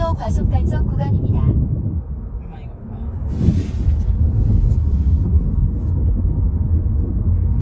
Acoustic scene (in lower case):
car